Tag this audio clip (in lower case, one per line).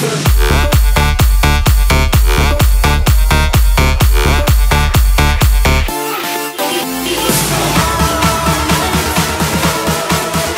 music